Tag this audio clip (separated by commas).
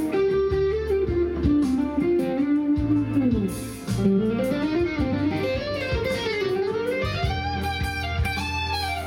Music, Guitar, Musical instrument, Plucked string instrument, Electric guitar